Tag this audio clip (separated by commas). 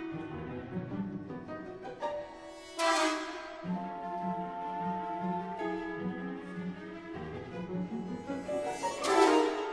Music, Theme music